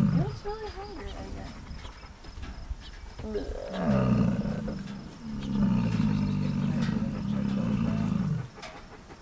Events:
0.0s-0.3s: animal
0.0s-9.2s: background noise
0.1s-1.5s: woman speaking
0.2s-4.1s: bird song
2.2s-2.6s: generic impact sounds
3.2s-3.3s: generic impact sounds
3.2s-8.2s: animal
4.9s-5.0s: generic impact sounds
5.4s-5.6s: bird song
5.4s-5.6s: generic impact sounds
5.9s-8.2s: bird song
6.8s-7.0s: generic impact sounds
8.6s-8.9s: generic impact sounds

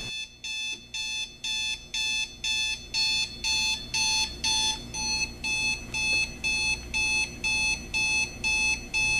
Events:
0.0s-9.1s: alarm
0.0s-9.1s: mechanisms
0.7s-0.8s: generic impact sounds
6.1s-6.2s: generic impact sounds
6.8s-6.9s: generic impact sounds

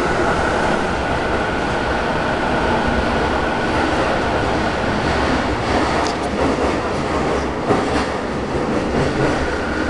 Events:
0.0s-9.8s: underground
5.0s-5.4s: clickety-clack
5.7s-6.2s: clickety-clack
6.0s-6.1s: tick
6.4s-7.4s: clickety-clack
7.6s-8.0s: clickety-clack
8.5s-9.8s: clickety-clack

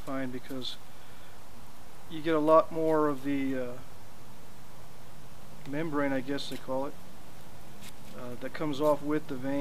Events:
0.0s-9.6s: mechanisms
0.0s-0.8s: man speaking
2.1s-3.8s: man speaking
5.6s-5.7s: tick
5.6s-6.9s: man speaking
6.4s-6.6s: surface contact
7.7s-8.2s: surface contact
8.1s-9.6s: man speaking

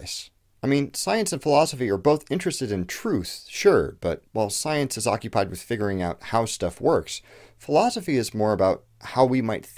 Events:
0.0s-0.3s: man speaking
0.0s-9.7s: background noise
0.5s-7.3s: man speaking
7.6s-8.7s: man speaking
9.0s-9.7s: man speaking

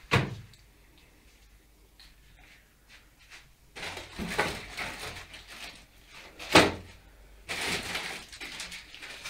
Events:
0.0s-9.2s: background noise
0.1s-0.4s: generic impact sounds
0.5s-0.6s: footsteps
0.9s-1.6s: footsteps
1.9s-2.7s: footsteps
2.8s-3.1s: footsteps
3.2s-3.5s: footsteps
3.7s-5.9s: generic impact sounds
6.0s-7.0s: generic impact sounds
7.4s-9.2s: crinkling

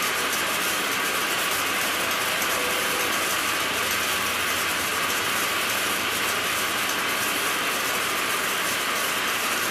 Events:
0.0s-9.7s: mechanisms

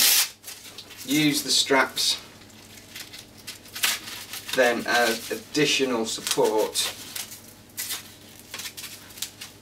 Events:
0.0s-3.2s: hook and loop fastener
0.0s-9.6s: mechanisms
0.7s-0.8s: tick
1.0s-2.2s: man speaking
3.3s-5.3s: hook and loop fastener
4.5s-4.6s: tick
4.5s-5.2s: man speaking
5.3s-6.9s: man speaking
6.1s-7.5s: hook and loop fastener
6.2s-6.3s: tick
7.7s-8.4s: hook and loop fastener
8.5s-9.5s: hook and loop fastener
9.2s-9.3s: tick

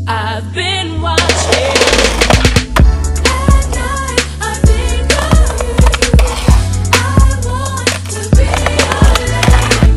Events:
0.0s-9.9s: music
0.0s-1.9s: female singing
1.2s-2.6s: skateboard
3.2s-4.2s: female singing
3.4s-4.0s: skateboard
4.4s-6.2s: female singing
5.1s-9.9s: skateboard
6.9s-9.9s: female singing

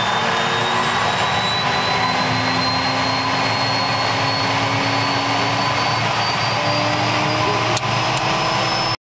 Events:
0.0s-8.9s: aircraft engine
8.1s-8.2s: generic impact sounds

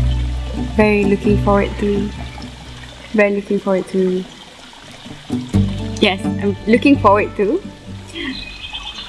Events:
0.0s-9.0s: music
0.0s-9.0s: liquid
0.7s-2.1s: female speech
3.2s-4.3s: female speech
6.0s-7.6s: female speech
8.1s-8.4s: breathing
8.5s-9.0s: insect

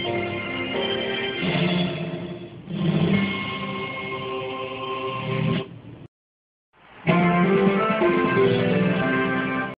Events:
0.0s-5.6s: music
0.0s-6.0s: mechanisms
6.7s-9.7s: mechanisms
7.0s-9.7s: music

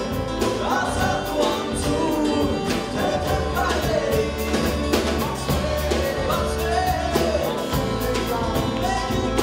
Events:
0.0s-4.3s: male singing
0.0s-9.4s: music
5.4s-9.4s: male singing

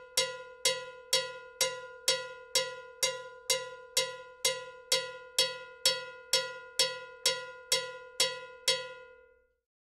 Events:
0.0s-9.6s: music

